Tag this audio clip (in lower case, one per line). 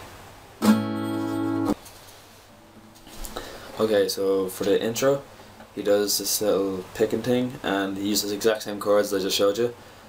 musical instrument
guitar
strum
music
acoustic guitar
plucked string instrument
speech